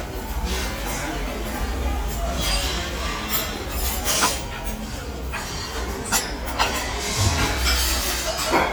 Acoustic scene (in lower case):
restaurant